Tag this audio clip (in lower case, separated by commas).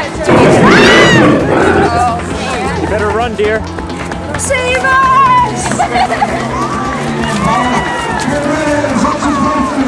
speech, music, run